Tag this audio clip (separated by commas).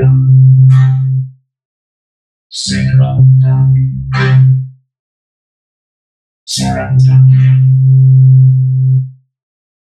Speech